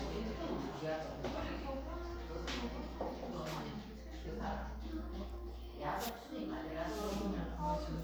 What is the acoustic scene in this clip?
crowded indoor space